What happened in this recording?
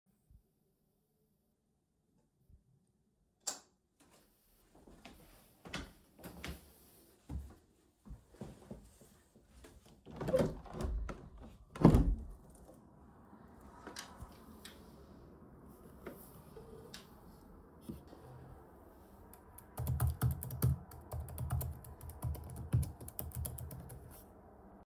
I used the light switch and went to the window. Before I reached the window, I had to move my chair slightly to the side. I opened the window, and the curtains moved as I did so. Next, I typed on my laptop keyboard. Meanwhile, I could hear noise and cars outside.